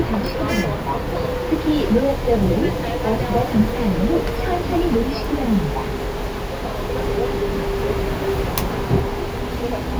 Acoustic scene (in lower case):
bus